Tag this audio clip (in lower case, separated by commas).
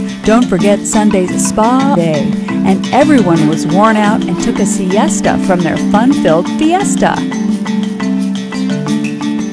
speech, music